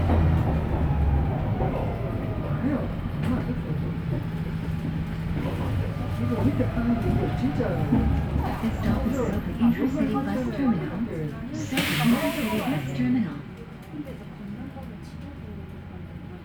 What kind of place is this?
bus